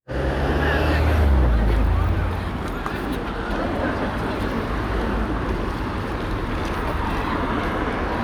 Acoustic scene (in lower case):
street